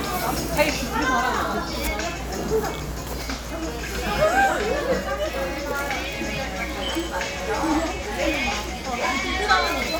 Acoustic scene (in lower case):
crowded indoor space